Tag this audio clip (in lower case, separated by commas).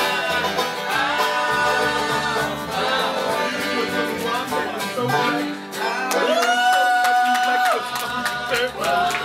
plucked string instrument, musical instrument, bluegrass, banjo, music, speech, singing